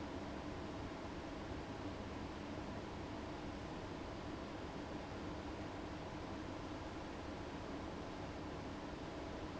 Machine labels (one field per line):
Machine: fan